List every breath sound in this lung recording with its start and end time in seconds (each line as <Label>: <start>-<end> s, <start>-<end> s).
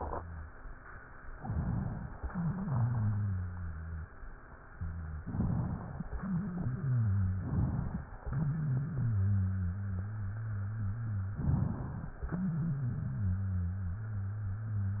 Inhalation: 1.33-2.22 s, 5.24-6.07 s, 7.48-8.12 s, 11.41-12.20 s
Exhalation: 2.22-4.11 s, 6.09-7.46 s, 8.27-11.34 s, 12.24-15.00 s
Wheeze: 0.00-0.48 s, 2.22-4.11 s, 4.74-5.22 s, 6.09-7.46 s, 8.27-11.34 s, 12.24-15.00 s